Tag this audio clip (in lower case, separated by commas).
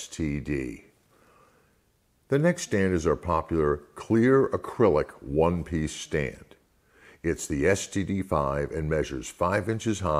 speech